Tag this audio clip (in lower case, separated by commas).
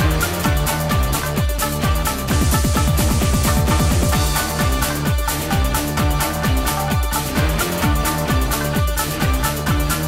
music